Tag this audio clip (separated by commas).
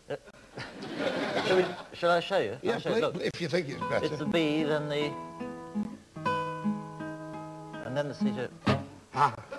Ukulele, Plucked string instrument, Speech, Guitar, Musical instrument, Music